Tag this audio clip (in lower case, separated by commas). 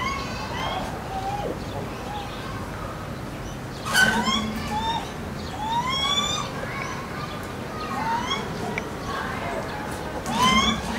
gibbon howling